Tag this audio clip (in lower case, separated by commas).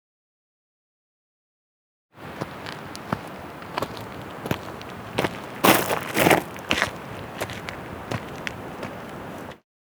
walk